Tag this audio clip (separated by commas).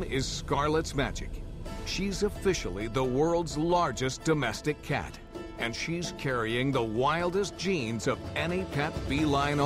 Speech, Music